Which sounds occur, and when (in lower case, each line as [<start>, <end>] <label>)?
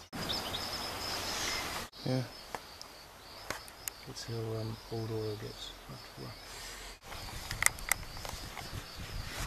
[0.00, 9.45] wind
[0.16, 1.63] bird call
[1.99, 3.02] bird call
[2.02, 2.26] male speech
[2.50, 2.58] tick
[2.76, 2.85] tick
[3.17, 5.78] bird call
[3.48, 3.58] tick
[3.81, 3.90] tick
[4.05, 6.32] male speech
[5.88, 6.89] bird call
[6.42, 6.93] surface contact
[7.06, 9.45] wind noise (microphone)
[7.07, 7.15] generic impact sounds
[7.08, 9.45] bird call
[7.44, 7.64] generic impact sounds
[7.76, 7.93] generic impact sounds
[8.13, 8.32] generic impact sounds
[8.51, 8.65] generic impact sounds
[9.31, 9.45] surface contact